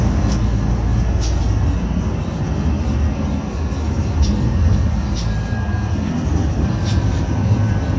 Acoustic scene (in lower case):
bus